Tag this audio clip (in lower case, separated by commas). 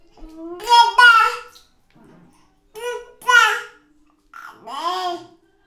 human voice, speech